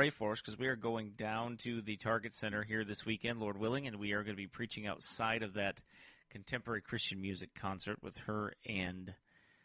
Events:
0.0s-9.6s: background noise
0.0s-5.7s: man speaking
5.9s-6.2s: breathing
6.4s-9.2s: man speaking
9.2s-9.6s: breathing

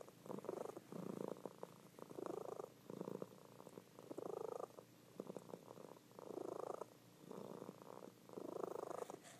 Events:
0.0s-0.1s: purr
0.0s-9.3s: background noise
0.2s-0.8s: purr
0.9s-1.9s: purr
2.0s-2.7s: purr
2.9s-3.8s: purr
4.0s-4.9s: purr
5.2s-6.0s: purr
6.1s-6.9s: purr
7.2s-8.1s: purr
8.3s-9.2s: purr
9.2s-9.3s: surface contact

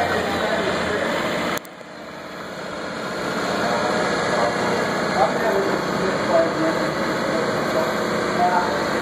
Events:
0.0s-1.7s: speech babble
0.0s-9.0s: ship
1.6s-1.7s: tick
8.5s-9.0s: man speaking

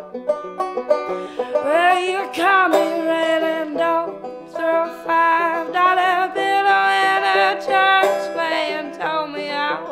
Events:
0.0s-9.9s: music
1.1s-1.5s: breathing
1.5s-4.1s: female singing
4.5s-9.8s: female singing

